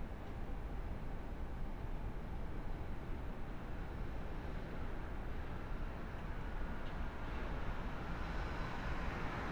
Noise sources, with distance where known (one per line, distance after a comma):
background noise